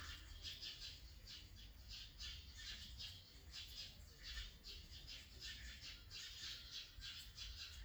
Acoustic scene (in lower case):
park